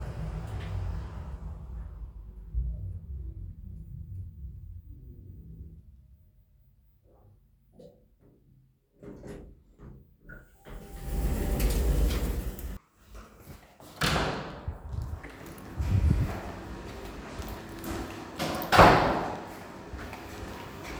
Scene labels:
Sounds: footsteps, door (more than once)

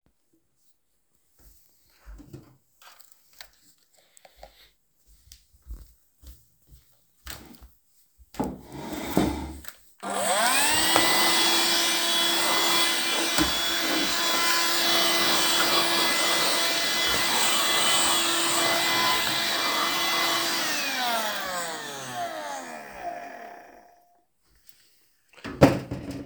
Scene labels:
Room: bedroom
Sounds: footsteps, vacuum cleaner

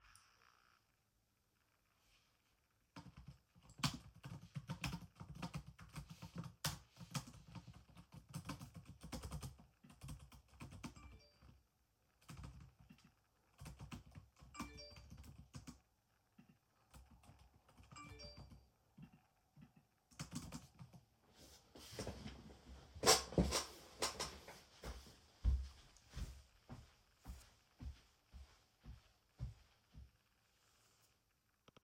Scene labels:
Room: office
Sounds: phone ringing, keyboard typing, footsteps

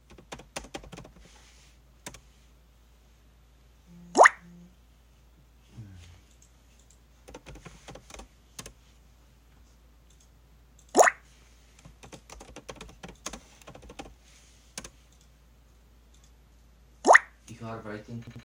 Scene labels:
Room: bedroom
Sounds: keyboard typing, phone ringing

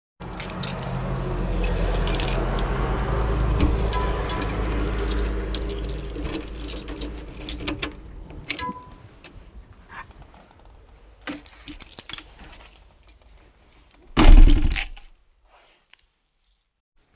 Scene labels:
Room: hallway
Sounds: keys, door (more than once)

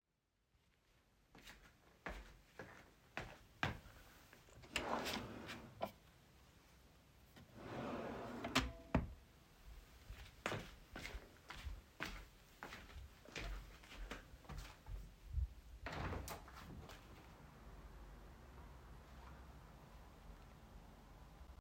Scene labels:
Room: bedroom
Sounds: footsteps, wardrobe or drawer (more than once), window

